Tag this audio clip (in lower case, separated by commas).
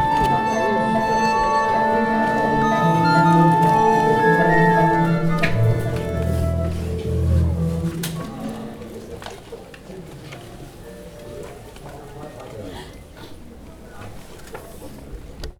musical instrument, music